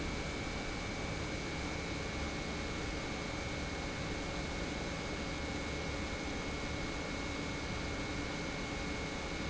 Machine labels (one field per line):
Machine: pump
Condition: normal